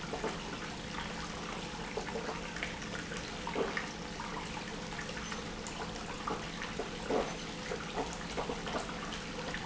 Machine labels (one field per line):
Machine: pump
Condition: abnormal